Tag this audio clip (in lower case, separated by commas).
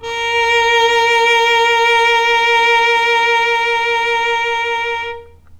bowed string instrument, music, musical instrument